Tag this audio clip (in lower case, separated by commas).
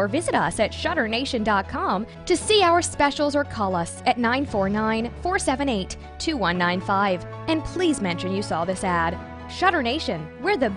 speech, music